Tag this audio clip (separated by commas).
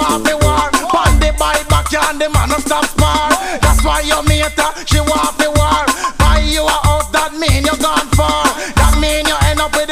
Music